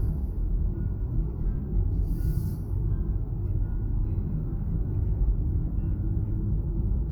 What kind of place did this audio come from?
car